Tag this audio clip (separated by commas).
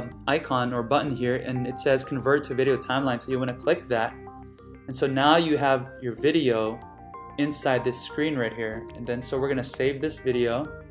Speech, Music